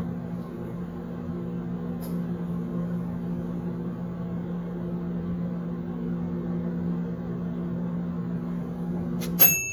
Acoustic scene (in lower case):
kitchen